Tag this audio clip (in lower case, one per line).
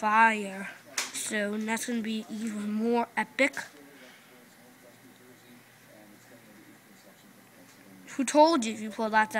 speech